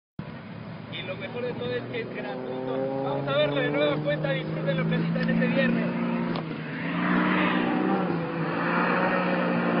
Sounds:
speech, vehicle

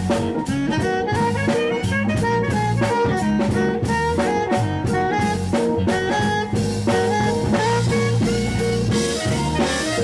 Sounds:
jazz, playing saxophone, musical instrument, guitar, music, brass instrument, drum, saxophone, plucked string instrument

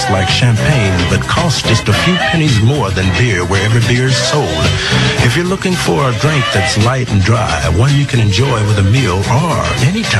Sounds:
music, speech

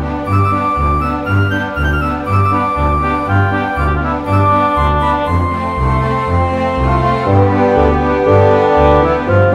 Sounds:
music, background music, happy music, video game music

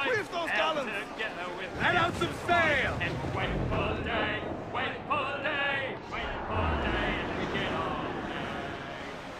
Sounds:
speech

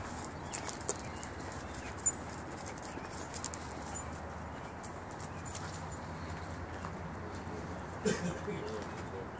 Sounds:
speech

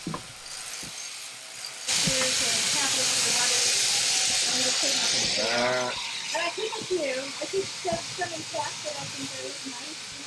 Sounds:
speech, bleat

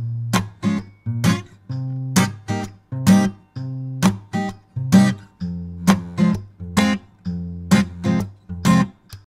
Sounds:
plucked string instrument, music, musical instrument, strum, guitar, acoustic guitar

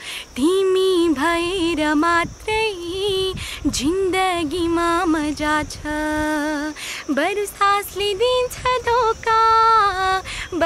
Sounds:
child singing

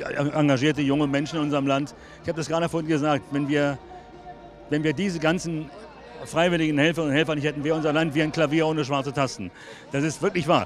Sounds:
speech

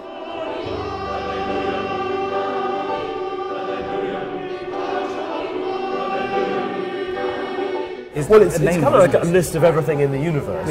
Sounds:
speech, music

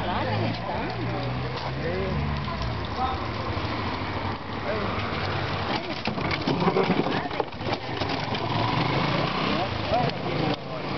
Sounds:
speech

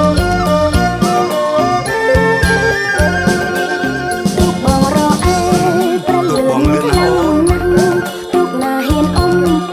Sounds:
music, speech

